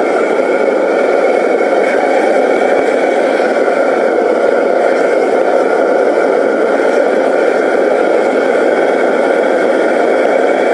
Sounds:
blowtorch igniting

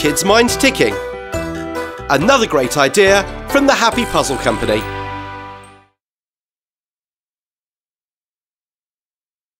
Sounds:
speech
tick-tock
music

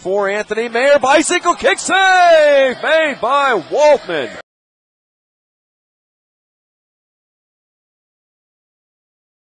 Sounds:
speech

